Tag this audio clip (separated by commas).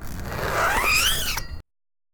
Zipper (clothing), home sounds